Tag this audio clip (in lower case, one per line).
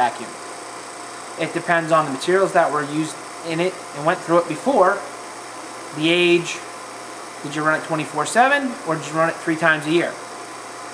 speech